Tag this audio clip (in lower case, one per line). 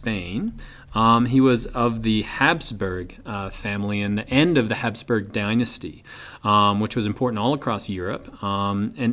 speech